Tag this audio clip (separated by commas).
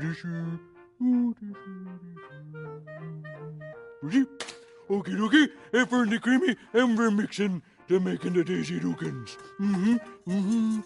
Speech, Music